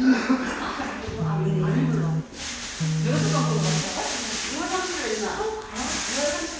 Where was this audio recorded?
in a crowded indoor space